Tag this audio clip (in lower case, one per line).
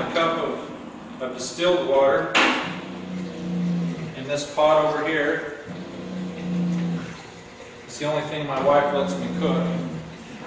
speech